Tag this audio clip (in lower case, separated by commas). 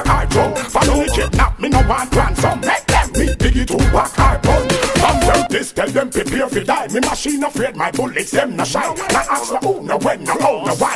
music